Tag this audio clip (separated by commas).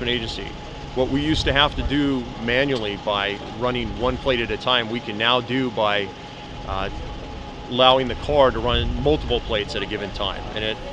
Vehicle, Speech